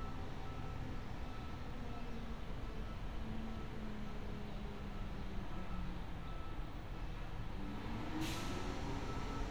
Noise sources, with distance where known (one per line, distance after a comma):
engine of unclear size
unidentified alert signal, far